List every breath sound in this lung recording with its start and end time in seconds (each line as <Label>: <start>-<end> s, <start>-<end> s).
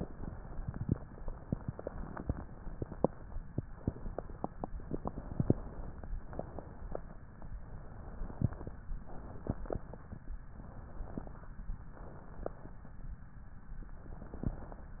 Inhalation: 1.06-2.39 s, 4.84-6.09 s, 7.54-8.77 s, 10.44-11.54 s, 13.83-14.94 s
Exhalation: 0.00-1.00 s, 3.74-4.74 s, 6.23-7.20 s, 9.01-10.23 s, 11.88-12.99 s